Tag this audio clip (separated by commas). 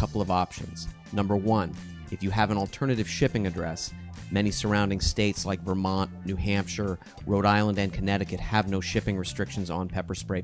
Speech, Music